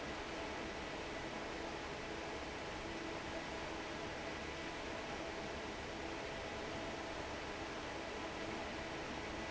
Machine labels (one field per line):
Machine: fan